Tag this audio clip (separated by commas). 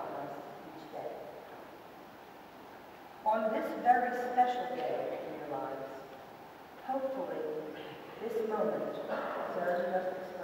Speech, Female speech